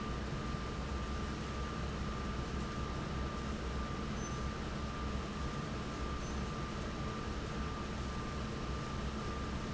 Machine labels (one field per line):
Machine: fan